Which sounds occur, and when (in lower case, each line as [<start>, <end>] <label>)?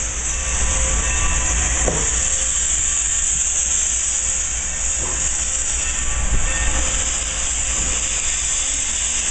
[0.00, 9.30] steam
[0.00, 9.30] train
[1.82, 2.05] generic impact sounds
[4.98, 5.26] generic impact sounds